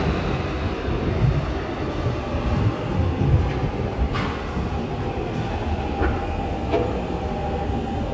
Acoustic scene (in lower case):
subway station